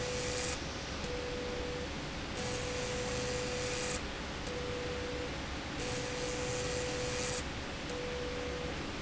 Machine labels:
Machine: slide rail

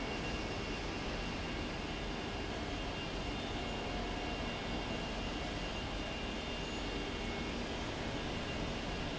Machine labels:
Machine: fan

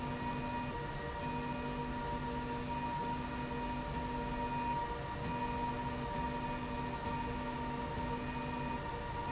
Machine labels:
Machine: slide rail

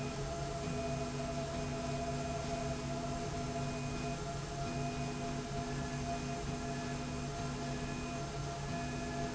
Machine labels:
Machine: slide rail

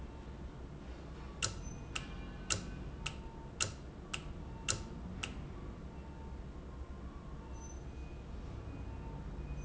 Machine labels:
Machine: valve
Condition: normal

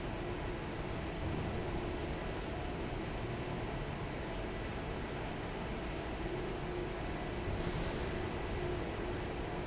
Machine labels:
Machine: fan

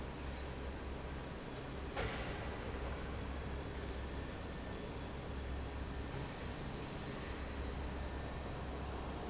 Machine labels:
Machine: fan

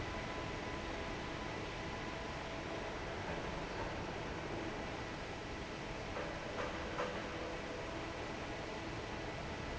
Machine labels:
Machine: fan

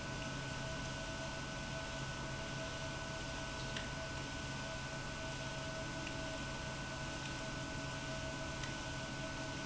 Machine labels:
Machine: pump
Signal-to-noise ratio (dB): 0 dB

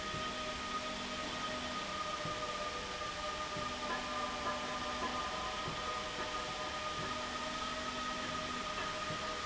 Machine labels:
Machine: slide rail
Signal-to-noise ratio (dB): -6 dB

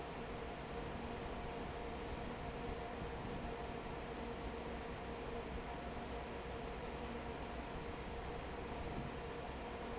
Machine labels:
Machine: fan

